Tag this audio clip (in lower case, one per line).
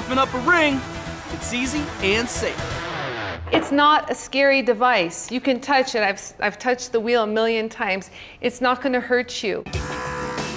music
tools
speech